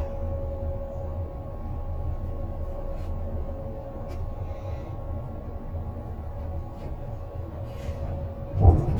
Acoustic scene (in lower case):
bus